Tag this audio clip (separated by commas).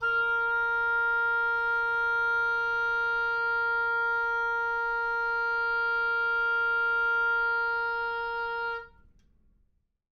Music, woodwind instrument, Musical instrument